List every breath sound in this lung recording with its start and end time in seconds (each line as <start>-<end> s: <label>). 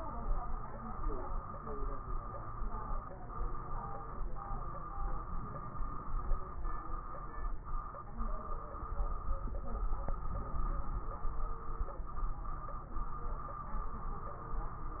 5.30-6.54 s: inhalation
10.21-11.27 s: inhalation